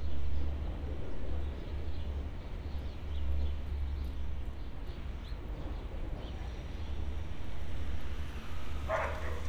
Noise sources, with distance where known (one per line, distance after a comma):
dog barking or whining, far